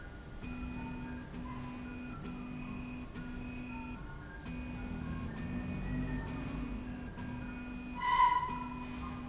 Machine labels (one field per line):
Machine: slide rail